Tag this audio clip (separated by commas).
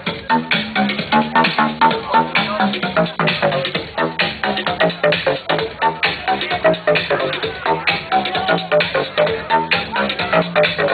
Music, Electronica